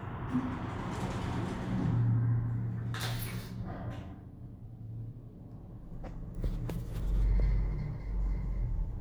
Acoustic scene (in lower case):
elevator